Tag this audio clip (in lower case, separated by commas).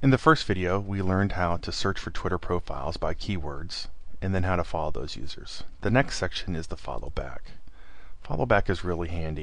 speech